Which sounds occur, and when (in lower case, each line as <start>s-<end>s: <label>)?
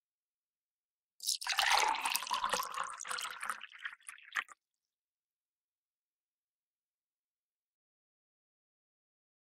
1.2s-4.5s: fill (with liquid)